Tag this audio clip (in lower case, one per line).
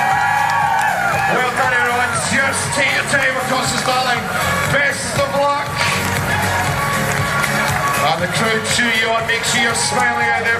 run
speech
music
outside, urban or man-made